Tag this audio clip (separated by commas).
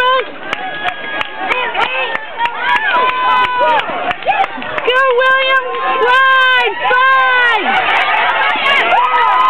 Run, Speech